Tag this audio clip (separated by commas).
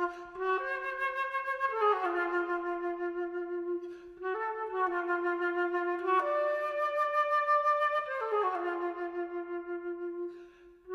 woodwind instrument